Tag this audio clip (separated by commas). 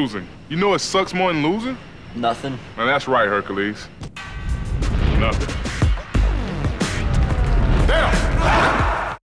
Speech, Music